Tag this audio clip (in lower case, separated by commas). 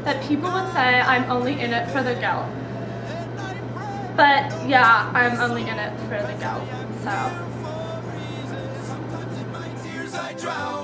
speech, music